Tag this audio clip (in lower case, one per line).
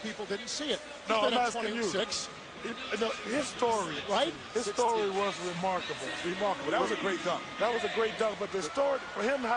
speech